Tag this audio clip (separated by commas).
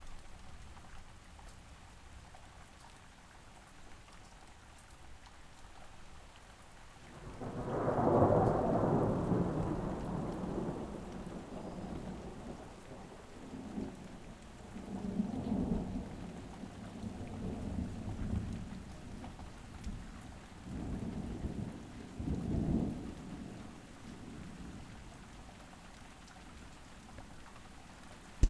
Rain, Thunderstorm, Thunder, Water